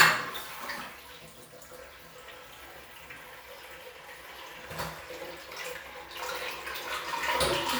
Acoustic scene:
restroom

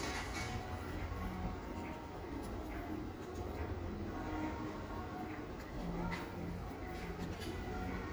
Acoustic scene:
cafe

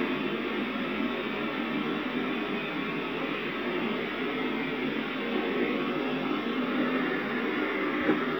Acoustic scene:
subway train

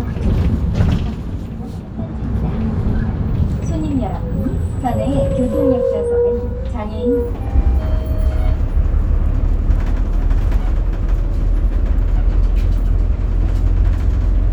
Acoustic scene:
bus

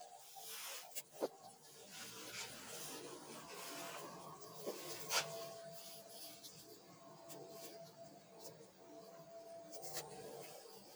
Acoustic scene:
elevator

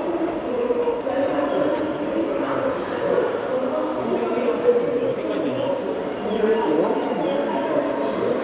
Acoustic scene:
subway station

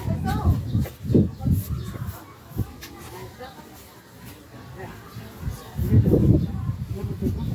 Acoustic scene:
residential area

